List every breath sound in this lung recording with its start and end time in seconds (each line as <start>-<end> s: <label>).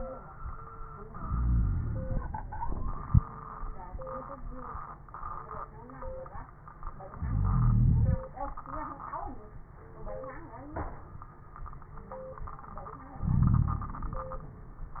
1.26-2.46 s: inhalation
1.26-2.46 s: wheeze
2.63-3.02 s: exhalation
7.19-8.21 s: inhalation
7.19-8.21 s: wheeze
13.23-14.24 s: inhalation
13.23-14.24 s: wheeze